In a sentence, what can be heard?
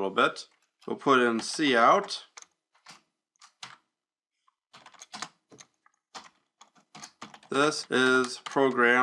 A man speaking followed by typing on a keyboard